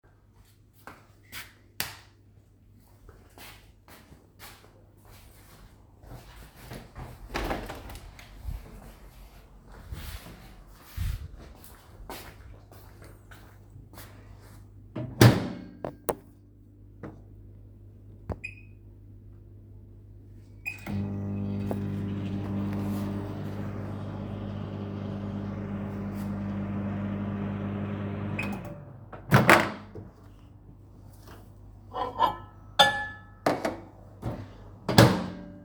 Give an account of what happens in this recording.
I turned on the light, I walked toward a window then opened it, I used the microwave